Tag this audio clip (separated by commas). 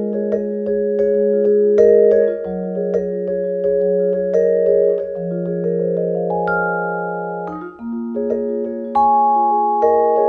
playing vibraphone